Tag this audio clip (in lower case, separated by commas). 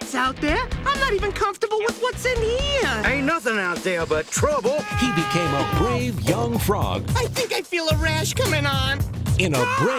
speech, music